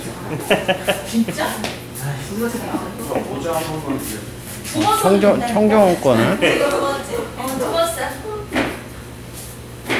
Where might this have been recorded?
in a crowded indoor space